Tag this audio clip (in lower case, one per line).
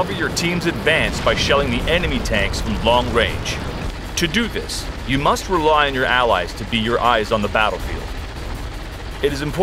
speech
music
artillery fire